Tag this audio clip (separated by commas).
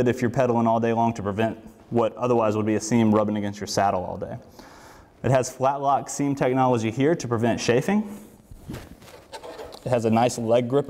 Speech